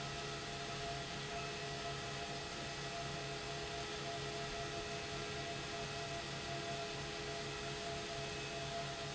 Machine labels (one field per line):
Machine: pump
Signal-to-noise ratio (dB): 0 dB